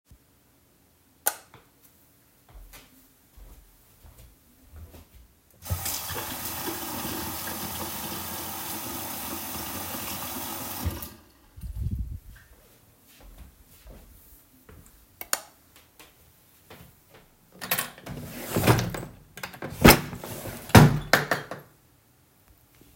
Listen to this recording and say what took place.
I turned on the light, entered the bathroom, , washed my hands turned the lights off and opend-closed a drawer